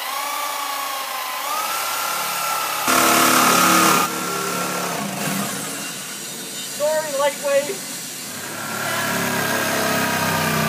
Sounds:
Speech, outside, urban or man-made, Drill

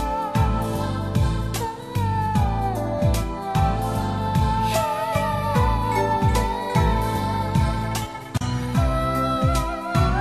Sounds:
Blues, Music, Background music, Classical music

